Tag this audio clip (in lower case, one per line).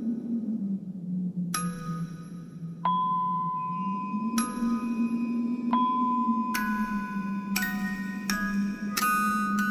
glockenspiel
xylophone
mallet percussion